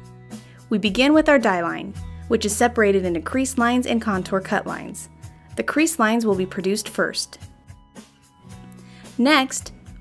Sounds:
Music, Speech

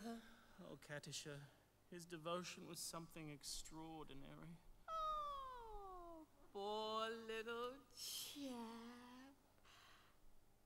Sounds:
Speech

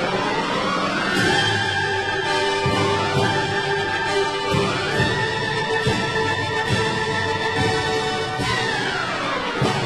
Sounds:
Music

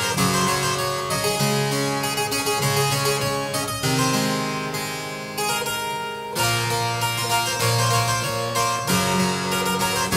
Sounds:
playing harpsichord

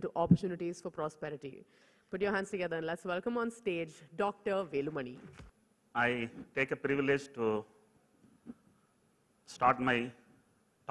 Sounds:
Speech, Male speech, woman speaking

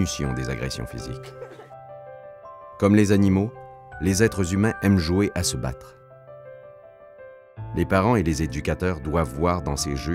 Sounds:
Music, Speech

